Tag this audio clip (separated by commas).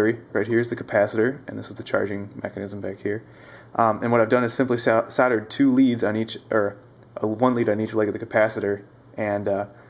Speech